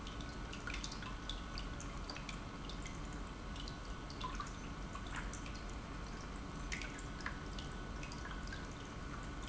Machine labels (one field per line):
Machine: pump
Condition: normal